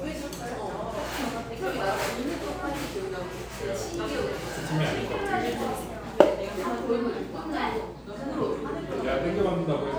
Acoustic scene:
cafe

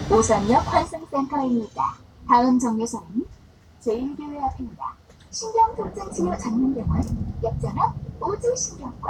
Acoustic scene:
bus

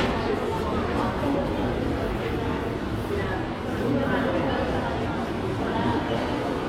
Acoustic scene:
crowded indoor space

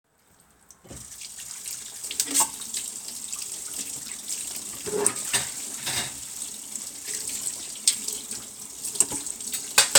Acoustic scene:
kitchen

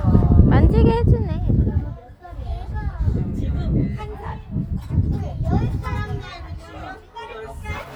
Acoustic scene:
park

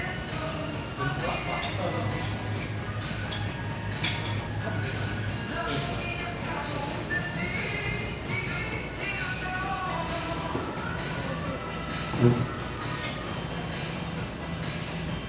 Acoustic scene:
crowded indoor space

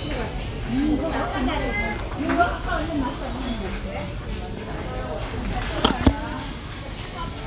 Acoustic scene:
restaurant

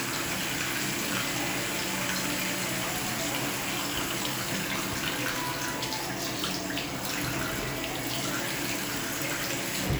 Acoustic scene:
restroom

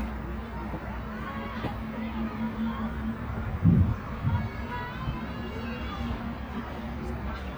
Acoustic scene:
residential area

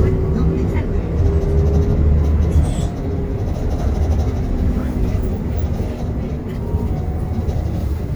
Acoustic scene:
bus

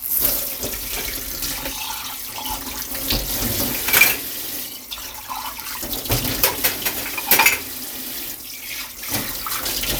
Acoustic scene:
kitchen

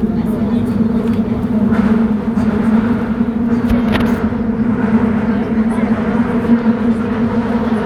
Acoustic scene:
subway train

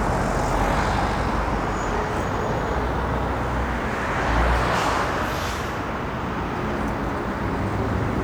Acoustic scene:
street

